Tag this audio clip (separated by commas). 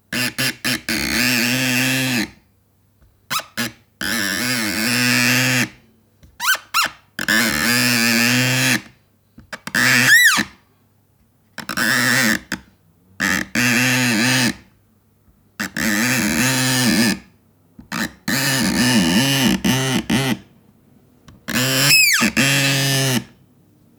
Screech